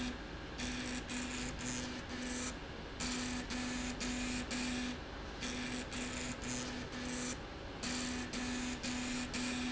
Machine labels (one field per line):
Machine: slide rail